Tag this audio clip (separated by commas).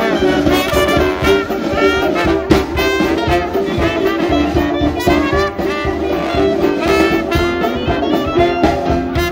Jazz, Musical instrument, Music, Trombone, Brass instrument, Trumpet